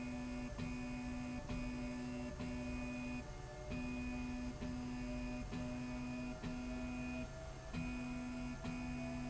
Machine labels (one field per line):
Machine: slide rail